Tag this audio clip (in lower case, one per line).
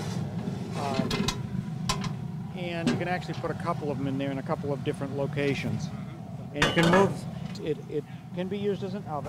speech